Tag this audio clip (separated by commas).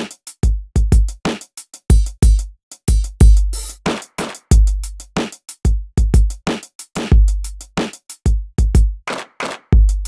Drum machine, Music, Drum kit, Musical instrument, Bass drum, Drum